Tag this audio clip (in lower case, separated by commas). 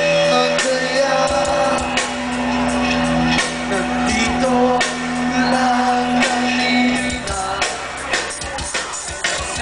music